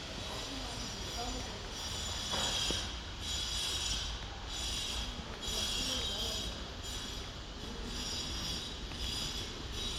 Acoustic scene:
residential area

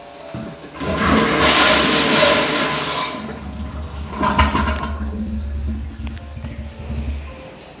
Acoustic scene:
restroom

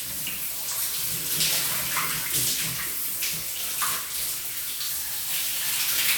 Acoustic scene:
restroom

